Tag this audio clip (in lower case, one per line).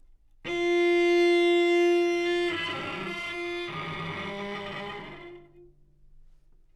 musical instrument
bowed string instrument
music